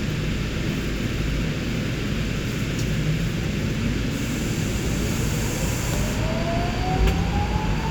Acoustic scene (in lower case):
subway train